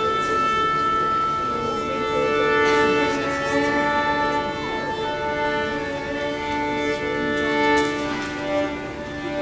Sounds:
music, musical instrument, fiddle

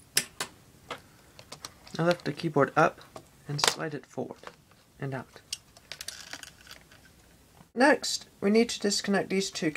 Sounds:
speech

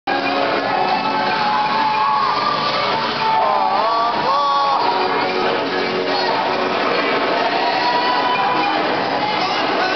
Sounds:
singing, choir, music, whoop

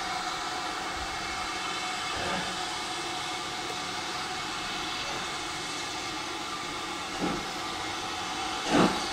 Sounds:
hiss, steam

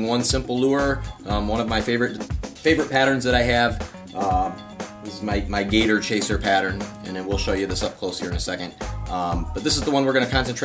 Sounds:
music, speech

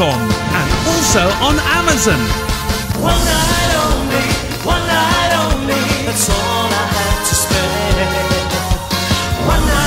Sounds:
music, speech

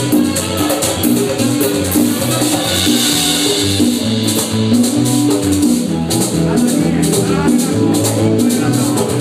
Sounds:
music, hubbub

